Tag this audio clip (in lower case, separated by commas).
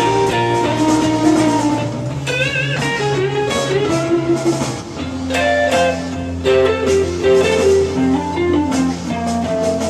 musical instrument, playing electric guitar, electric guitar, plucked string instrument, guitar, music